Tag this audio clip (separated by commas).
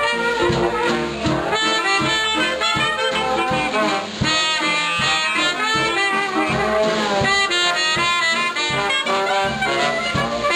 Music